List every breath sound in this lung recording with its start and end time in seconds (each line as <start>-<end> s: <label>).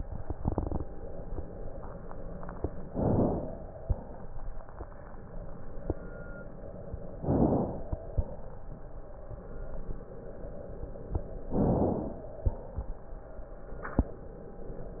2.84-3.81 s: inhalation
3.80-4.66 s: exhalation
7.14-8.07 s: inhalation
8.05-9.26 s: exhalation
11.47-12.40 s: inhalation
12.40-13.69 s: exhalation